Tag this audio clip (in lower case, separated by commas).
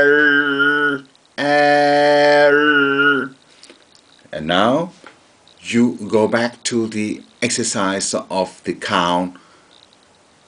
speech, male singing